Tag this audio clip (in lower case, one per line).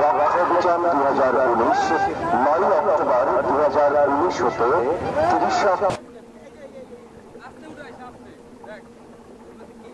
police radio chatter